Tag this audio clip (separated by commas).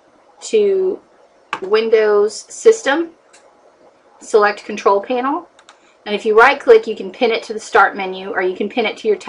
Speech